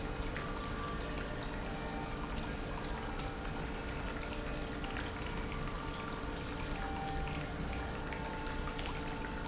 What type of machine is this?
pump